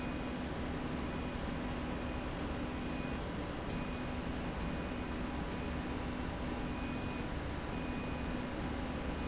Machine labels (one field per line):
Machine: slide rail